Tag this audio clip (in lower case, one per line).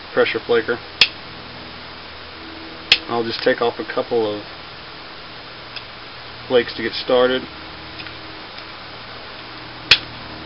speech